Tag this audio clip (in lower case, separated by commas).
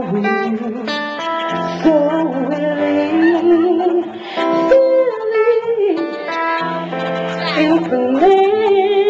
speech, music